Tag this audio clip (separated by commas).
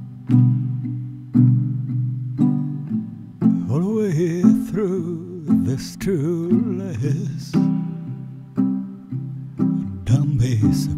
Music